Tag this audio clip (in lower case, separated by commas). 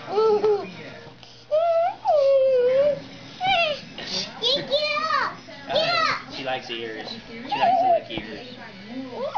music, speech